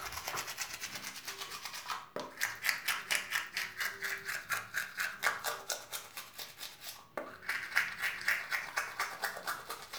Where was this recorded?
in a restroom